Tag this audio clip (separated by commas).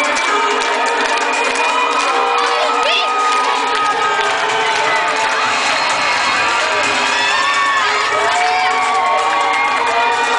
Music